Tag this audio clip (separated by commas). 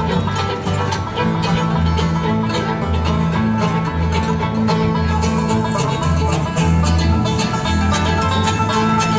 Banjo, Guitar, Music, Violin, Country